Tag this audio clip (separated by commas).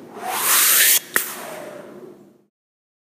Whoosh